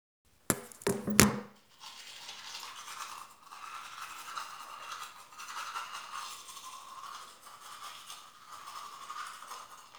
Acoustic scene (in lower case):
restroom